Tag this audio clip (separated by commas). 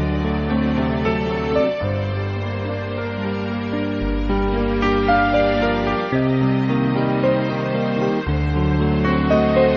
Music